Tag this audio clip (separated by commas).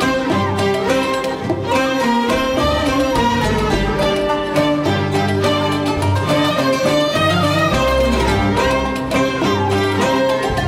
Orchestra, Musical instrument, Violin, Music